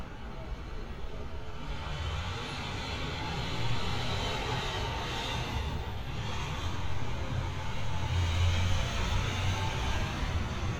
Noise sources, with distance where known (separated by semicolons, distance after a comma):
large-sounding engine, near